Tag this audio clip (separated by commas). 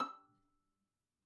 Bowed string instrument, Music, Musical instrument